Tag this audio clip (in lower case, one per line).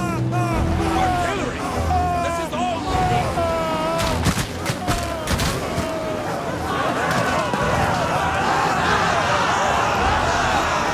speech
music